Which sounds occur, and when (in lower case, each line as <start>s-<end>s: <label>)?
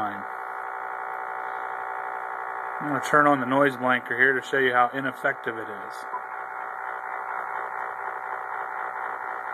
0.0s-0.1s: man speaking
0.0s-9.5s: mechanisms
1.3s-1.7s: breathing
2.7s-6.0s: man speaking
6.1s-6.2s: bleep